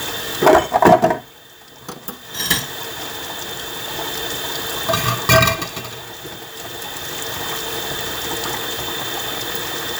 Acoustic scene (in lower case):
kitchen